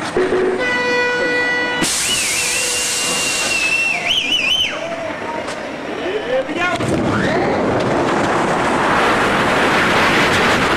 The noise a train makes when it pulls in including honking, hissing and passengers whistling